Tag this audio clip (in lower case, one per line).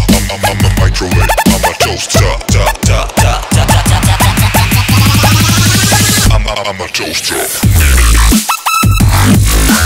dubstep
music